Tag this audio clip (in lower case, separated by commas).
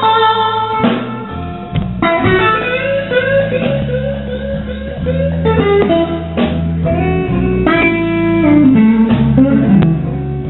music